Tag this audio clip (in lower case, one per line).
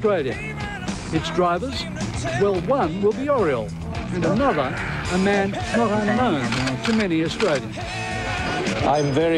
speech
music